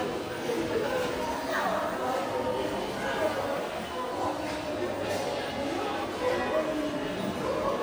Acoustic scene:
crowded indoor space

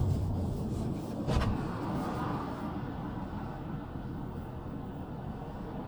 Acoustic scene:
car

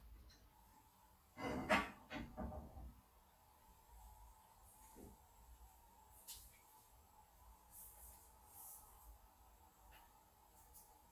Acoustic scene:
kitchen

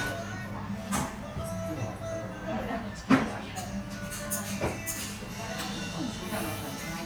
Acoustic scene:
restaurant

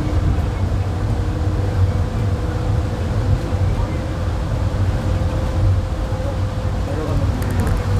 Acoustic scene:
bus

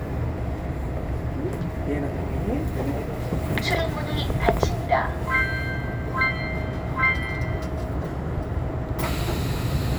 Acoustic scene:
subway train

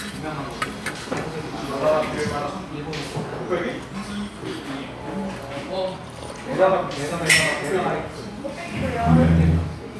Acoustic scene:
crowded indoor space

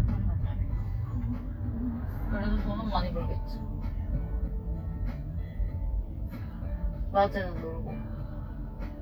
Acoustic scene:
car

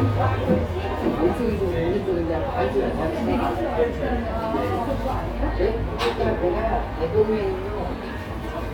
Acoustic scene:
cafe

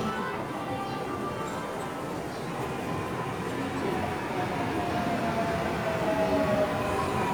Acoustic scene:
subway station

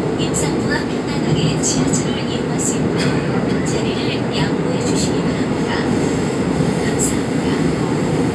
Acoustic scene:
subway train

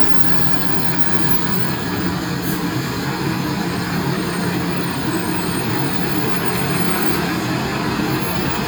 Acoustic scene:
street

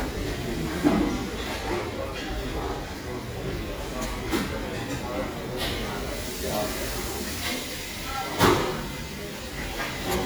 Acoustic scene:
restaurant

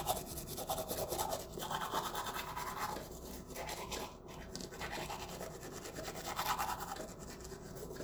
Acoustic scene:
restroom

